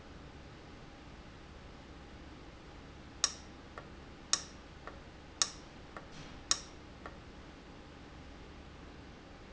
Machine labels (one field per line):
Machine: valve